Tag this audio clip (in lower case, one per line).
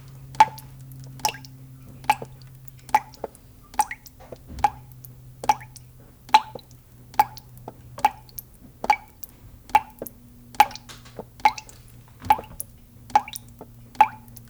drip
liquid